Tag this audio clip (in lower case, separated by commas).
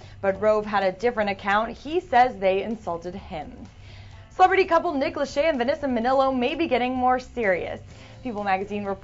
speech